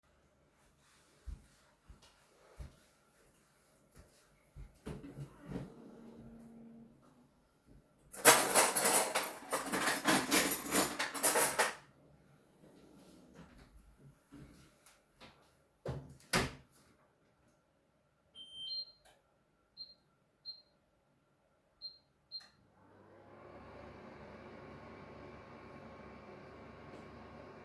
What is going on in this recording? Opned drawer, got some cuttlery, put somthing in the microwave, closed it, turned it on